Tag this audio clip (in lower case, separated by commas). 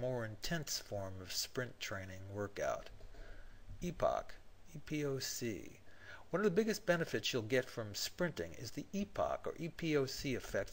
speech